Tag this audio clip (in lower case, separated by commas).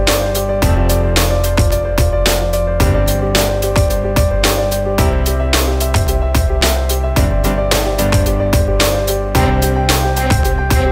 music